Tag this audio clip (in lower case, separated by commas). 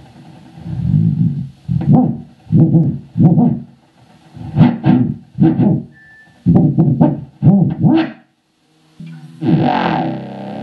guitar, plucked string instrument, strum, music, electric guitar, musical instrument